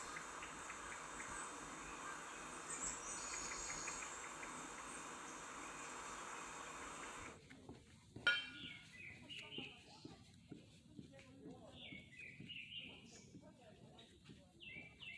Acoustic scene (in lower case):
park